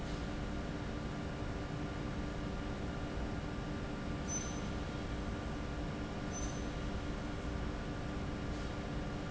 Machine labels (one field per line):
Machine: fan